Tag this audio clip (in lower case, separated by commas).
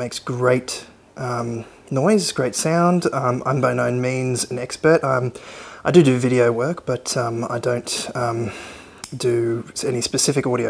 speech